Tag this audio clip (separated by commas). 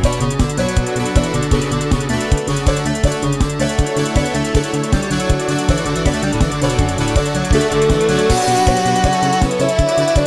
Music